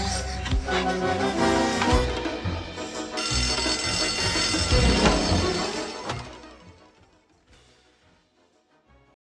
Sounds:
vehicle, music

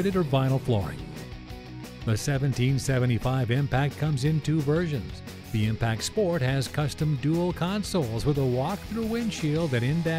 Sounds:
music, speech

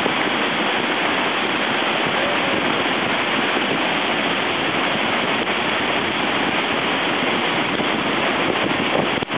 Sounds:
speech

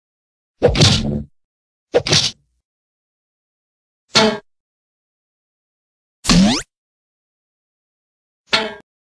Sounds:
sound effect

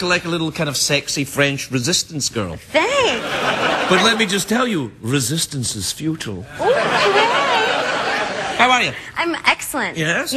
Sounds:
speech

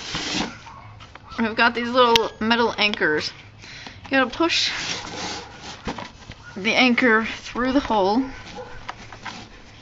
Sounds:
speech

